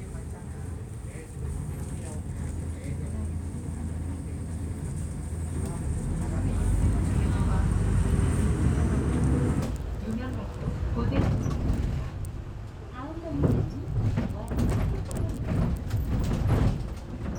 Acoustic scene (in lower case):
bus